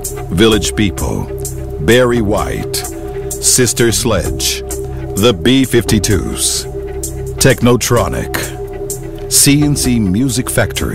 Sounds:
Speech, Music

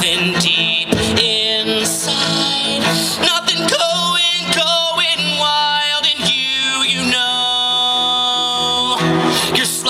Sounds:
Music

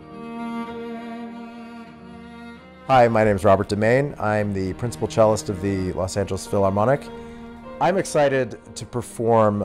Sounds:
Musical instrument, Speech, Music

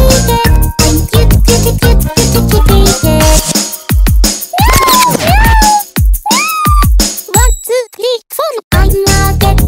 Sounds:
Music

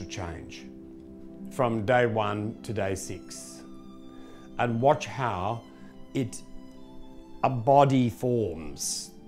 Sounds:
Soul music, Music, Speech

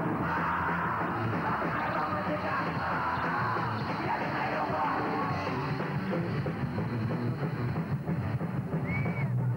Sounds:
Music

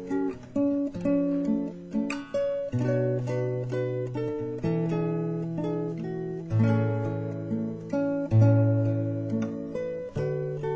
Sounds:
Guitar, Music, Strum, Plucked string instrument, Acoustic guitar, Musical instrument

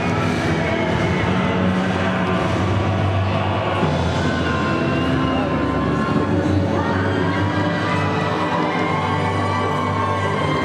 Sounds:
Speech, Music

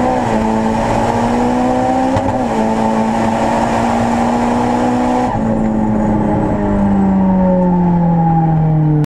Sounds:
Motor vehicle (road), Vehicle, Car

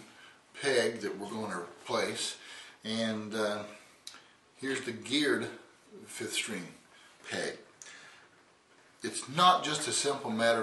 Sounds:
Speech

